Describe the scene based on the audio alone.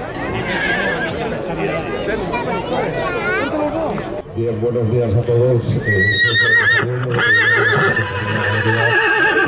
A horse neighs, and a child talks